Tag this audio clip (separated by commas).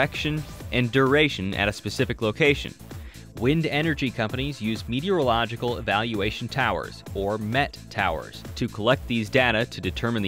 Speech, Music